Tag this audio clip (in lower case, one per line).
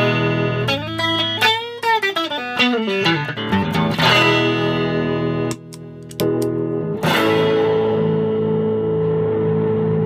music
electronic tuner
effects unit